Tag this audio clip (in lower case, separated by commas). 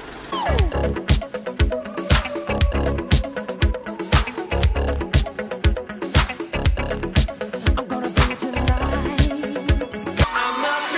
music